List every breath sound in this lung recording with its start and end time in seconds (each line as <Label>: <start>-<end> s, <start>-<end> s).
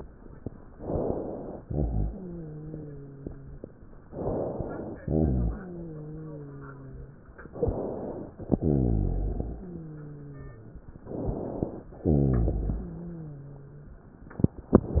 Inhalation: 0.76-1.61 s, 4.14-4.99 s, 7.53-8.39 s, 11.08-11.94 s
Exhalation: 1.61-3.65 s, 5.05-7.16 s, 8.58-10.68 s, 12.03-14.00 s
Wheeze: 1.61-3.65 s, 5.05-7.16 s, 8.58-10.68 s, 12.03-14.00 s